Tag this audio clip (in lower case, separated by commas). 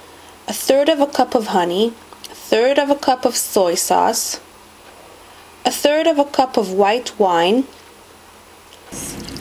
speech